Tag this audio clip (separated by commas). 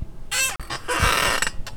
Squeak